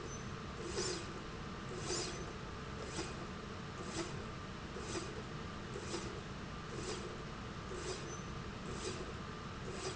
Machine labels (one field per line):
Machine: slide rail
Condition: normal